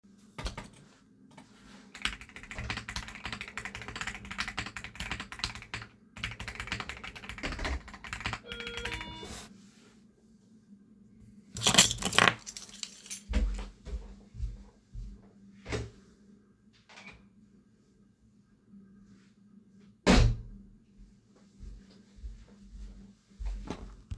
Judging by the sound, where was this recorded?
office